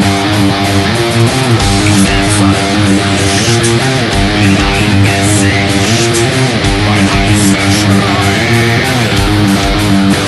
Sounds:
plucked string instrument, guitar, electric guitar, musical instrument, music, acoustic guitar

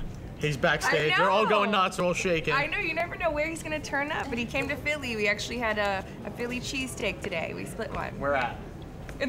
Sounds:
speech

